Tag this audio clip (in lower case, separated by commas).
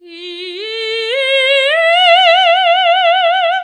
human voice, singing